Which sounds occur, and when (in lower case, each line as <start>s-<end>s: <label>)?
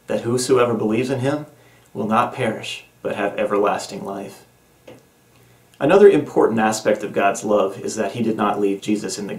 0.0s-9.3s: mechanisms
0.1s-1.4s: male speech
1.5s-1.9s: breathing
1.9s-2.8s: male speech
3.0s-4.4s: male speech
4.8s-5.0s: generic impact sounds
5.8s-9.3s: male speech